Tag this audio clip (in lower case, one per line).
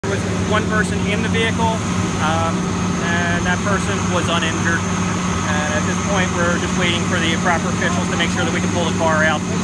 speech
motor vehicle (road)
vehicle